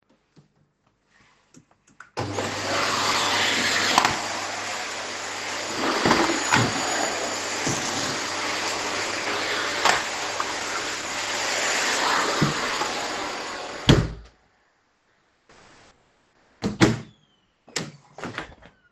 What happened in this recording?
I spilled some muesli on the floor so I cleaned it using the vacuum. I then went into hallway, where I store my vacuum and turned it off. When I was done I came back into the living room